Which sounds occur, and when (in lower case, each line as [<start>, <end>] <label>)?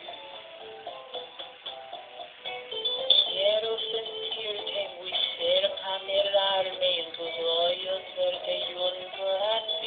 [0.00, 9.85] background noise
[0.00, 9.85] music
[3.22, 4.00] synthetic singing
[4.24, 9.85] synthetic singing